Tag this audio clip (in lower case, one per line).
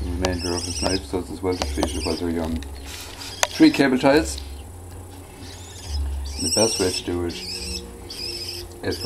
speech
bird
animal